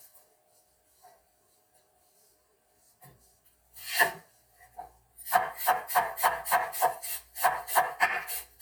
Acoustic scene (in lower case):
kitchen